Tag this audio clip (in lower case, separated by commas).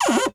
home sounds, cupboard open or close